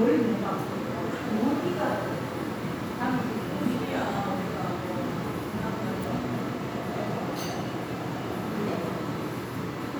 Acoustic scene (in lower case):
crowded indoor space